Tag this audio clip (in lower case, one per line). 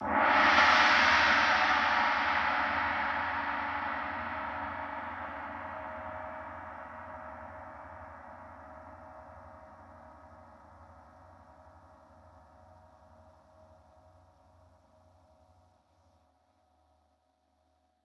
music
gong
musical instrument
percussion